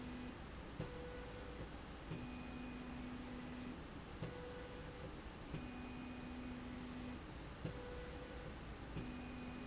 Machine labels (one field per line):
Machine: slide rail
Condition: normal